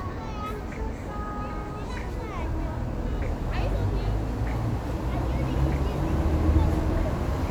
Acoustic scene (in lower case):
street